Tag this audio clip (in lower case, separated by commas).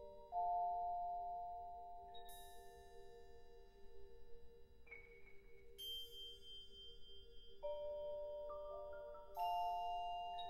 classical music, musical instrument, music, orchestra